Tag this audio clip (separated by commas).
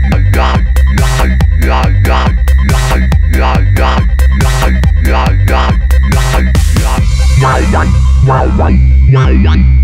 Music, Exciting music